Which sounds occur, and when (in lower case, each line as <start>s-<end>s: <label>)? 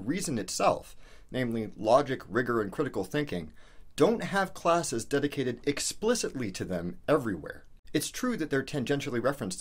0.0s-0.8s: man speaking
0.0s-9.6s: background noise
1.0s-1.3s: breathing
1.3s-3.4s: man speaking
3.5s-3.9s: breathing
4.0s-6.9s: man speaking
7.1s-7.7s: man speaking
7.9s-9.6s: man speaking